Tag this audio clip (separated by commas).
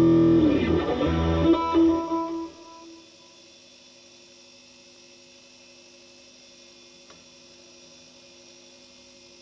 Plucked string instrument, Musical instrument, Guitar, Music